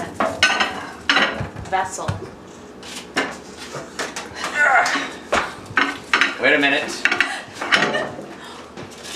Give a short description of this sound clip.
Plates clanking as a woman talks followed by a man talking with a woman laughing then a door closing shut